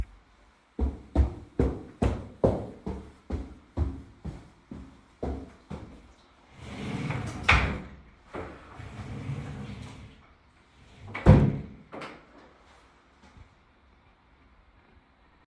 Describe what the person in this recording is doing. I walked toward the wardrobe in the bedroom producing footsteps. I opened a wardrobe drawer and moved it briefly before closing it again. After closing the drawer I stepped away from the wardrobe.